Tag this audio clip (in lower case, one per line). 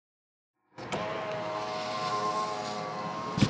vehicle
car
motor vehicle (road)